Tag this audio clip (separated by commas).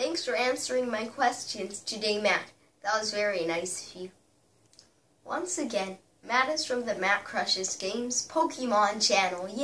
inside a small room, Speech